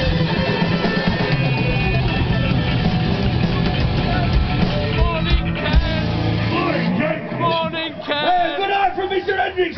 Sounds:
Music, Speech

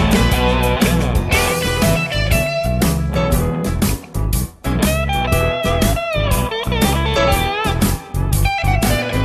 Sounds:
Music, Blues

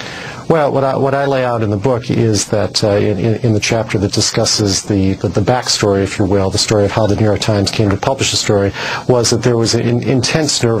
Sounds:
Speech

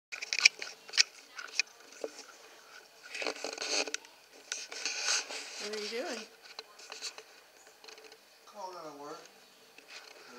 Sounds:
Speech

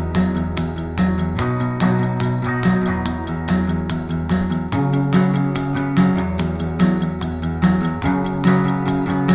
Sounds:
Music

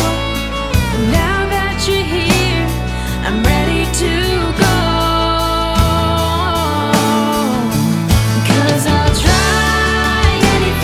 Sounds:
Music

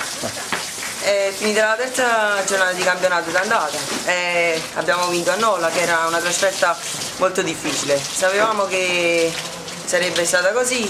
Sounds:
Speech

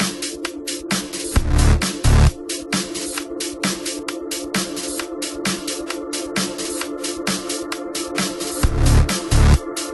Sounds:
Drum and bass, Music

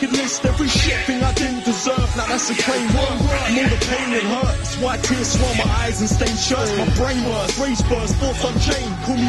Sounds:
Music, Rapping

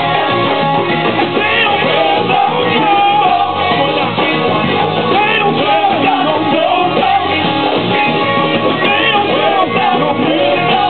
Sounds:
Music

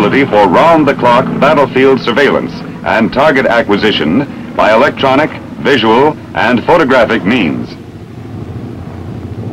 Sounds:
airplane, Aircraft, Vehicle, outside, urban or man-made, Speech

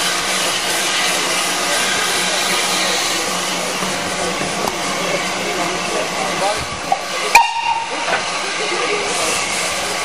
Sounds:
Steam, Hiss

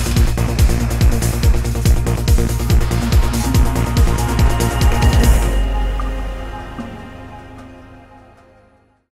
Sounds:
Music

